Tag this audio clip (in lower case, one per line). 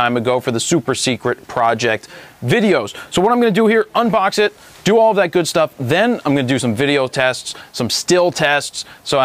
speech